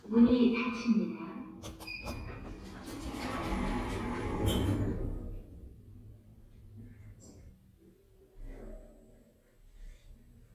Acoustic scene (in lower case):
elevator